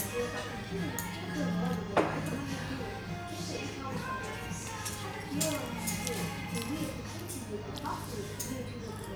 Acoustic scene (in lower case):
restaurant